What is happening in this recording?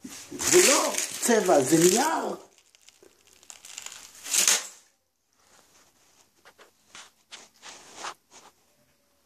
Someone is speaking and there is a crinkling in the background